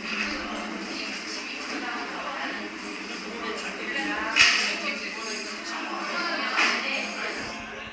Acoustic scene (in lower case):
crowded indoor space